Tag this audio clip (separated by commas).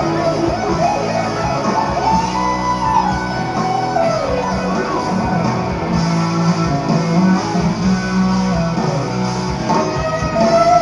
Music